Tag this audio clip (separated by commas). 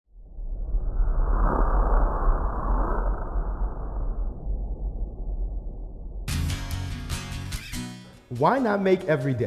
Speech, Music